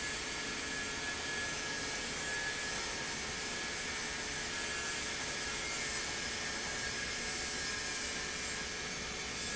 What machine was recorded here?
pump